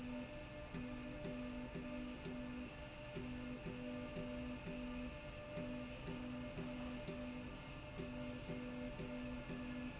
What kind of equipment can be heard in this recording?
slide rail